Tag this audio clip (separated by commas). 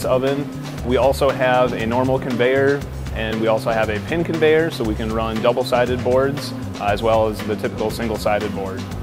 Music, Speech